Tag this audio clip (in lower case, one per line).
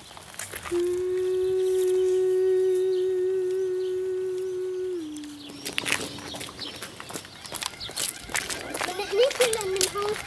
speech